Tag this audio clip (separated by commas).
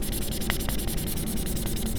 home sounds, Writing